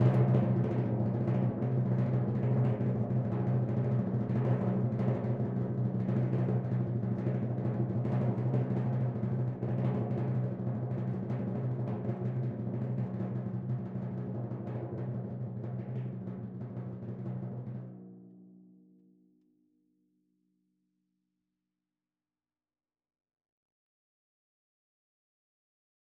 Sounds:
Musical instrument, Music, Drum, Percussion

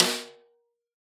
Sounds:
Percussion, Drum, Music, Snare drum, Musical instrument

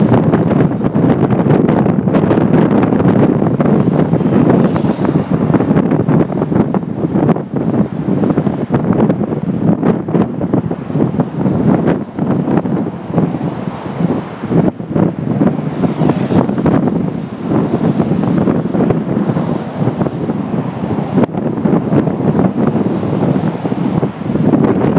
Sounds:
Engine, Vehicle, Traffic noise, Motor vehicle (road)

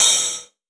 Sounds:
Musical instrument, Hi-hat, Cymbal, Music, Percussion

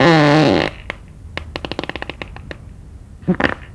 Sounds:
Fart

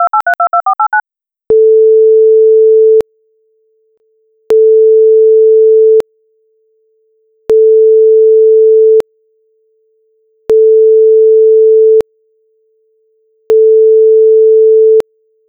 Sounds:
Alarm, Telephone

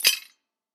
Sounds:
Tools

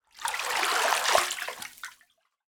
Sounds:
home sounds, Bathtub (filling or washing)

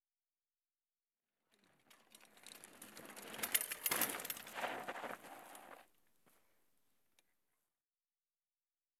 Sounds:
Bicycle, Vehicle

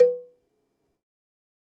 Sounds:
Bell, Cowbell

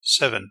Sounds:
Speech, man speaking, Human voice

